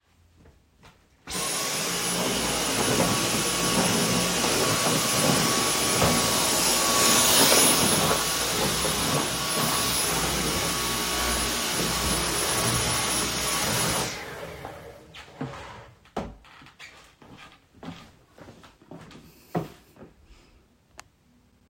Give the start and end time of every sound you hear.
1.2s-15.0s: vacuum cleaner
15.1s-19.8s: footsteps

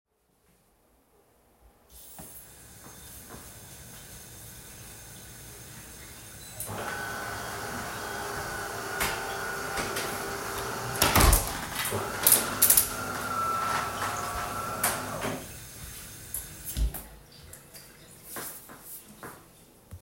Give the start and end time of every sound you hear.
1.8s-17.1s: running water
6.6s-15.5s: coffee machine
10.9s-13.0s: window

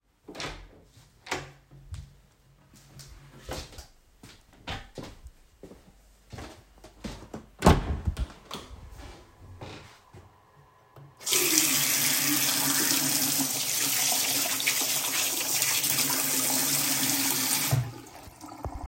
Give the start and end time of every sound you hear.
0.3s-1.6s: door
1.9s-7.5s: footsteps
7.6s-8.8s: door
8.9s-10.4s: footsteps
11.2s-18.9s: running water

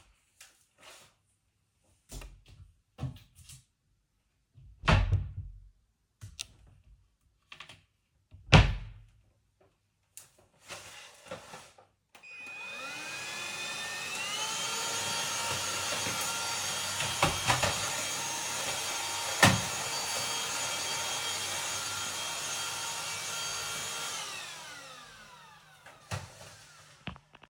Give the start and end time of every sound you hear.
2.9s-9.3s: wardrobe or drawer
12.0s-26.1s: vacuum cleaner

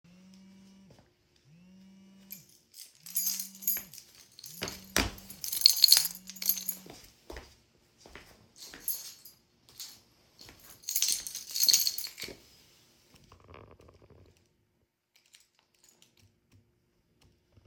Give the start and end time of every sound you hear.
0.0s-7.5s: phone ringing
0.8s-1.3s: footsteps
2.1s-12.7s: keys
6.7s-9.3s: footsteps
10.3s-12.8s: footsteps
15.1s-16.5s: keys

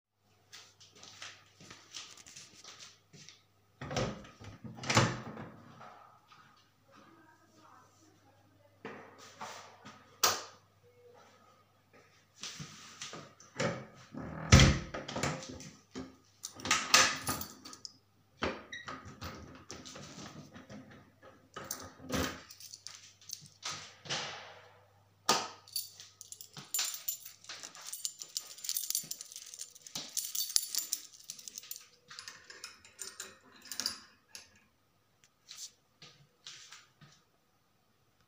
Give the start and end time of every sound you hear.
0.5s-3.7s: footsteps
3.7s-5.6s: door
9.8s-10.7s: light switch
13.4s-15.8s: door
16.4s-20.7s: door
16.9s-18.1s: keys
21.4s-23.1s: door
21.5s-24.6s: keys
25.3s-26.1s: light switch
25.8s-34.6s: keys

